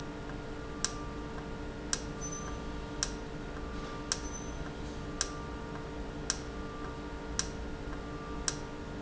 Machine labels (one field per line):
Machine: valve